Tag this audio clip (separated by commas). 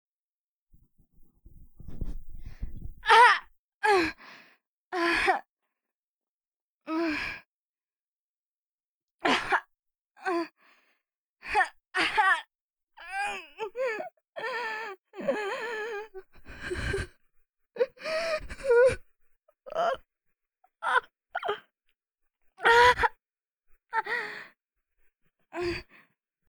Human voice